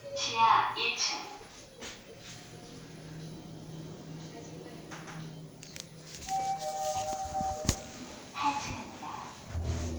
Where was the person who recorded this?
in an elevator